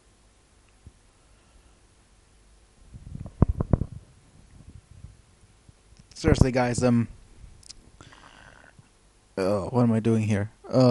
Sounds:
silence, speech, inside a small room

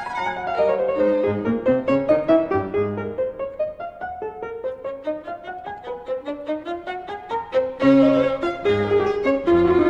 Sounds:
keyboard (musical), fiddle, bowed string instrument, piano

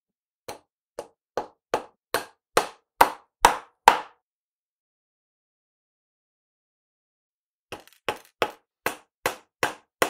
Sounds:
hammering nails

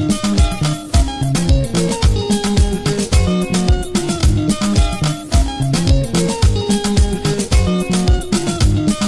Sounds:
musical instrument, music, strum, guitar

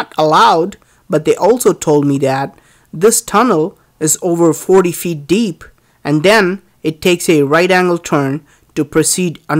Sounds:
speech

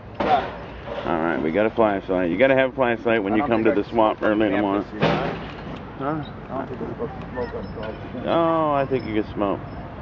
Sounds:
speech

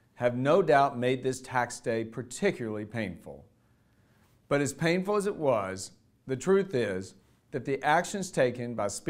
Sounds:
speech

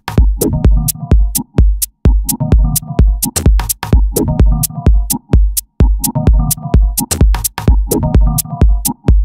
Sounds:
electronic music, music, techno

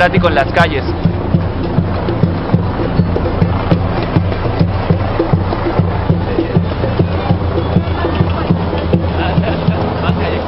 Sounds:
people marching

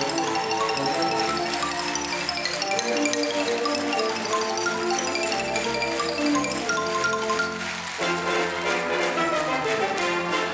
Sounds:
playing glockenspiel

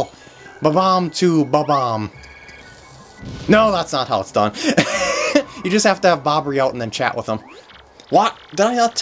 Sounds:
speech

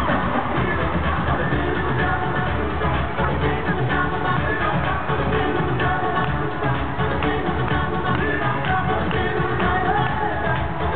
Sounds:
music

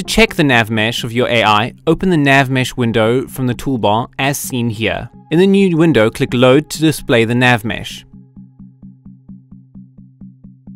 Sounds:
speech, music

